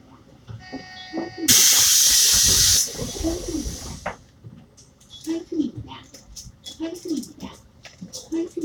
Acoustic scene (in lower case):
bus